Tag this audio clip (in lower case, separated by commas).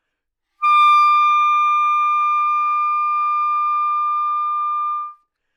woodwind instrument, musical instrument, music